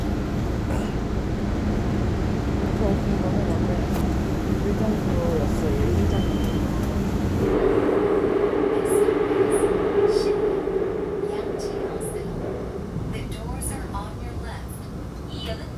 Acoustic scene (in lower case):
subway train